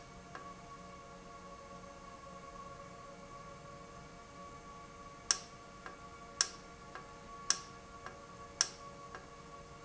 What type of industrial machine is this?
valve